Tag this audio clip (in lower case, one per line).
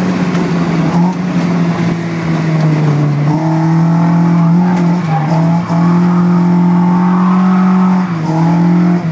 vehicle
car
car passing by